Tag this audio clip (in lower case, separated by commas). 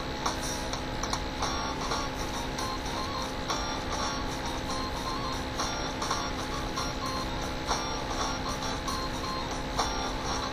music